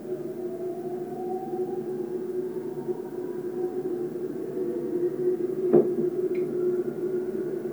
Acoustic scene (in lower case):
subway train